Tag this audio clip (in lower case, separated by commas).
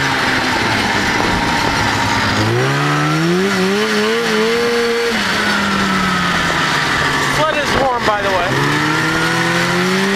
speech